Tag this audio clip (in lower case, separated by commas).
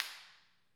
hands, clapping